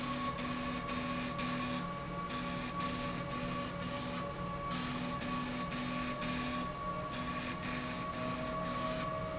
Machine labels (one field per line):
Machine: slide rail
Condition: abnormal